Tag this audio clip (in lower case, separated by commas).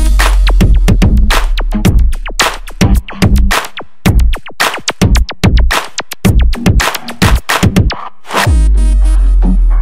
music